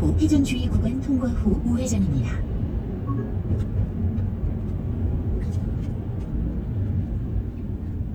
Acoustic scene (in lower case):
car